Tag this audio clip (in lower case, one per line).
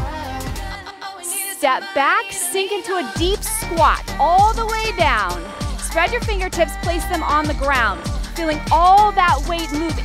music
middle eastern music
speech
jazz